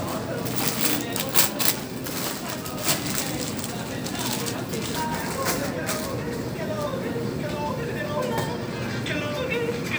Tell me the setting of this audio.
crowded indoor space